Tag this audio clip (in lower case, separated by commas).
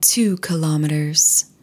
speech, female speech, human voice